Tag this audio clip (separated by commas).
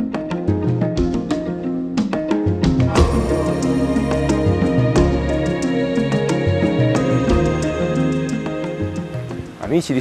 Music, Speech